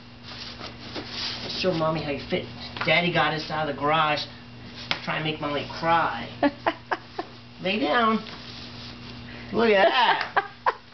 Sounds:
Speech

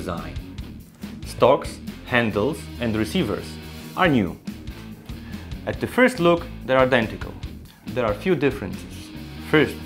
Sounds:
Music, Speech

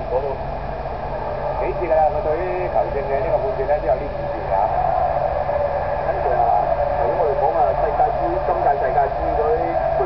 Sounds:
Speech

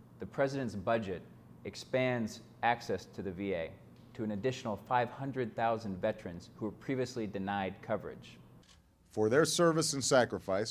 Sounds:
Speech

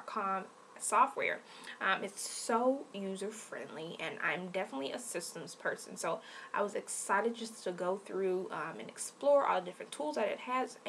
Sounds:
Speech

